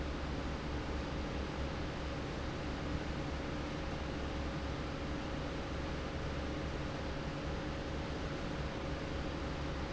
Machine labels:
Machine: fan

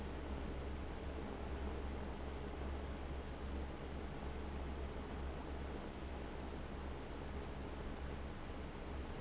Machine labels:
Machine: fan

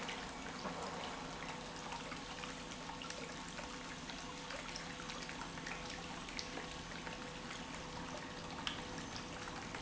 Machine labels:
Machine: pump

